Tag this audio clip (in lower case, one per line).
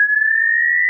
alarm